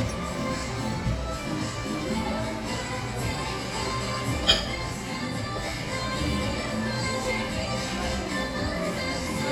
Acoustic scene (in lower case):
cafe